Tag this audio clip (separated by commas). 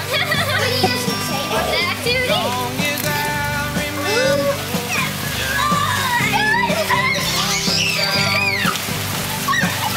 Rain, Music, outside, rural or natural, kid speaking, Speech